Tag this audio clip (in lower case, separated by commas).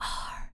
whispering, human voice